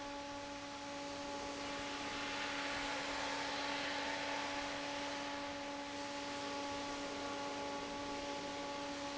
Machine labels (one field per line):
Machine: fan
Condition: normal